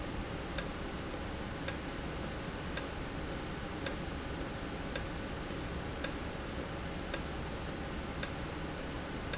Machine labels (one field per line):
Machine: valve